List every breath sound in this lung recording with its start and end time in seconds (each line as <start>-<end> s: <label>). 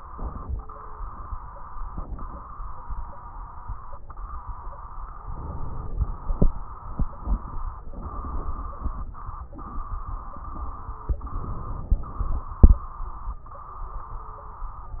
0.08-0.60 s: inhalation
0.08-0.60 s: crackles
1.89-2.41 s: inhalation
1.89-2.41 s: crackles
5.24-6.28 s: inhalation
5.24-6.28 s: crackles
7.90-9.12 s: inhalation
7.90-9.12 s: crackles
11.29-12.51 s: inhalation
11.29-12.51 s: crackles